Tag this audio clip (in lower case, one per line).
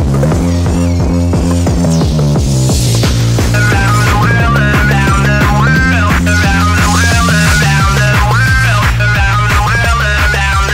electronic music
techno
music